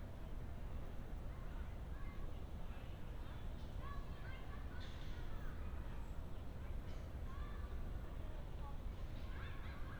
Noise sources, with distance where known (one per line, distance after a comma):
non-machinery impact, far
person or small group talking, far